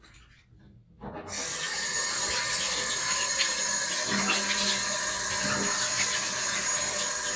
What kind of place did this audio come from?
restroom